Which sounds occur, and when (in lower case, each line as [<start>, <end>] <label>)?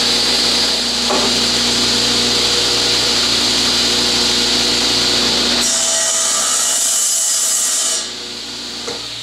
[0.00, 9.22] mechanisms
[1.03, 1.27] tap
[8.81, 9.01] tap